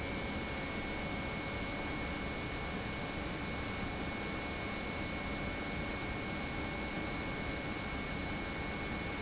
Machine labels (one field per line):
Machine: pump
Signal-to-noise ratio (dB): -6 dB